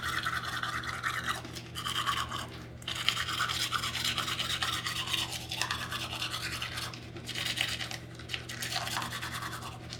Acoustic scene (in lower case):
restroom